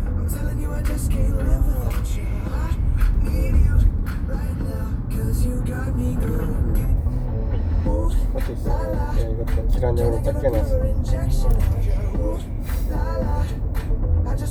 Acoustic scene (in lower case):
car